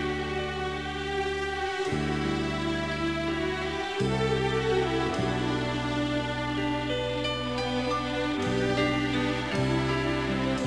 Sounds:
Music

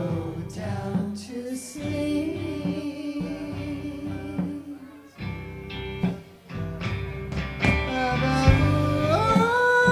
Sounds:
Music, Singing, Orchestra

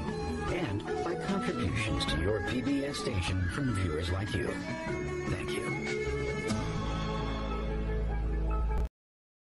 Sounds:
Speech, Music, Background music

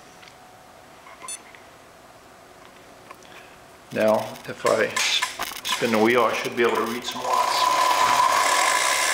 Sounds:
Speech

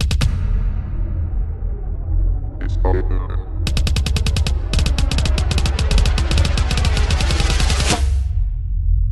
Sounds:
Speech, Music, Drum

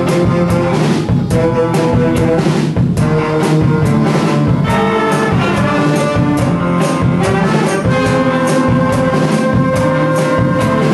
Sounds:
Orchestra, Jazz, Music

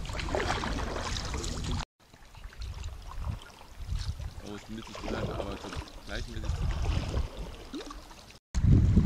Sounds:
canoe, Vehicle, kayak rowing, Speech, Water vehicle

